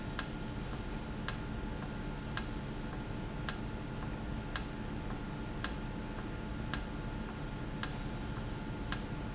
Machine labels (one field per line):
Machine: valve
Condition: normal